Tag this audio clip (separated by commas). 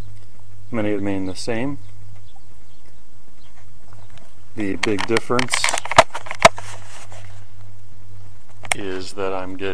Speech